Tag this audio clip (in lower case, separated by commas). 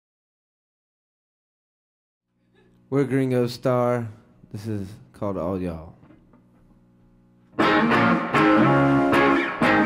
electric guitar, musical instrument, plucked string instrument, guitar, music, speech